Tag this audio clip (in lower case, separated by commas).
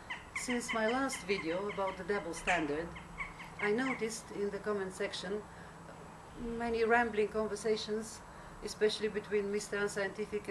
female speech, speech